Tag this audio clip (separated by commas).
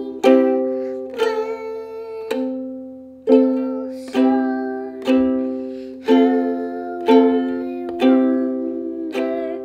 playing ukulele